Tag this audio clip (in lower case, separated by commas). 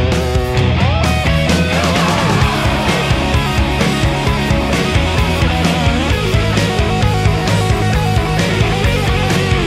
music, rock music, progressive rock